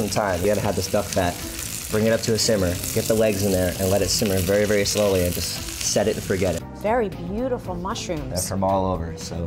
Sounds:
Chopping (food)

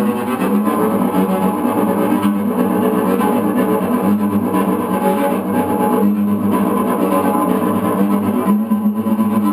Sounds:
Cello, Musical instrument, Music, playing cello

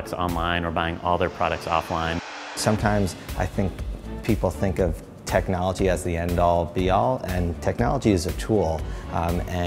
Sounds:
Speech, Music

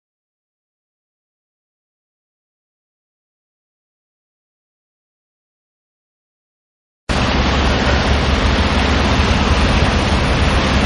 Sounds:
Silence, Train, Vehicle, Rail transport, Railroad car, outside, rural or natural

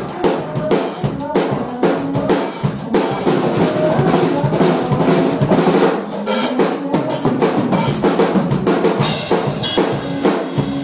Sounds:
Music

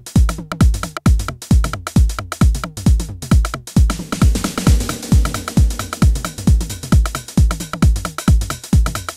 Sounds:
Electronic music, Music, Techno

